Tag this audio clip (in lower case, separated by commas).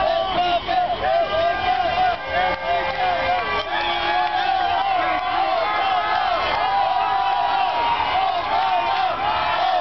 speech